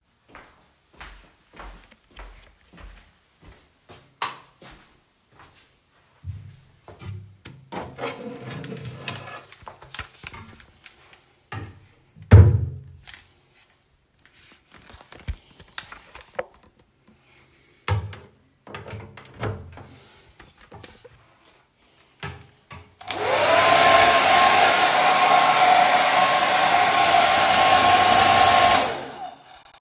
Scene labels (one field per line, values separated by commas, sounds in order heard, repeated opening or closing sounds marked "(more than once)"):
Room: bathroom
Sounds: footsteps, door, light switch, wardrobe or drawer (more than once)